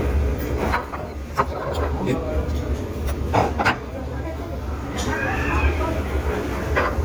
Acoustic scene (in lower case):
restaurant